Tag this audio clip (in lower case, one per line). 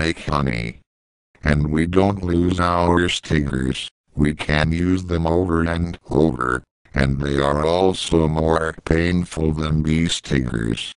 speech synthesizer
speech